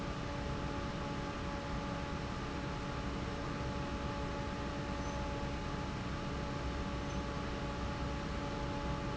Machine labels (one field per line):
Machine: fan